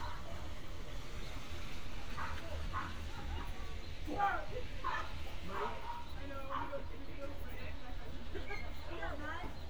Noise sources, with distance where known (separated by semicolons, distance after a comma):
person or small group talking, near; dog barking or whining